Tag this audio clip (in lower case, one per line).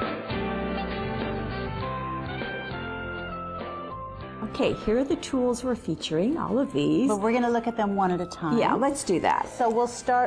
music
speech